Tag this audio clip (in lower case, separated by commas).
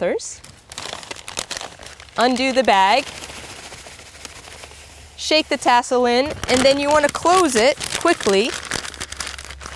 speech, outside, rural or natural, crumpling